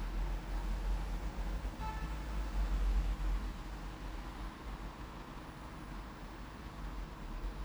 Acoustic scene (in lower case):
elevator